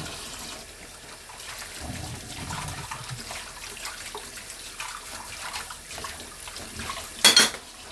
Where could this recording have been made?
in a kitchen